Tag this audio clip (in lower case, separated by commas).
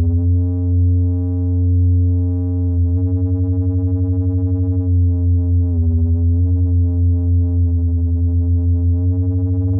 synthesizer, playing synthesizer